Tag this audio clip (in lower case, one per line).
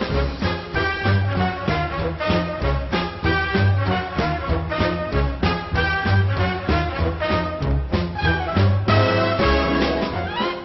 music